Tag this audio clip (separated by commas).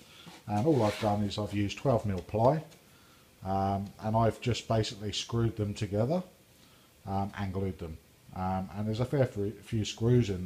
Speech